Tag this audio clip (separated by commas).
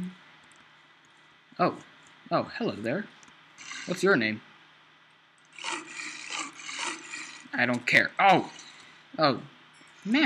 Speech